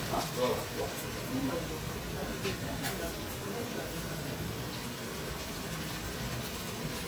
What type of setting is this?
kitchen